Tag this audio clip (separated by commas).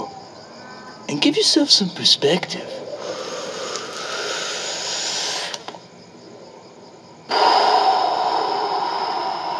Speech, inside a small room